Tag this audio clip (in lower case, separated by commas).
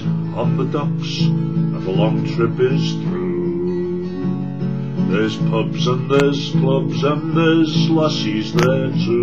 musical instrument, guitar, music, singing, plucked string instrument